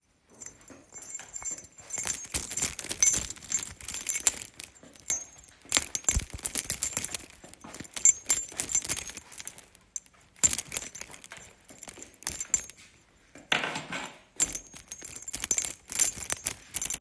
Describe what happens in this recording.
I walked around the room while holding a keychain in my hand. The keys moved and jingled as I walked.